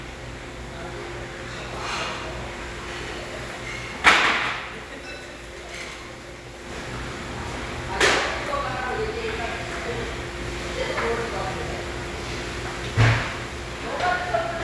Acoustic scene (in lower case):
restaurant